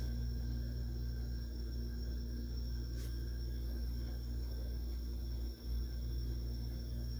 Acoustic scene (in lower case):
kitchen